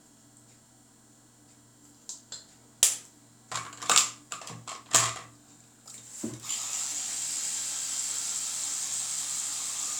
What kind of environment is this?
restroom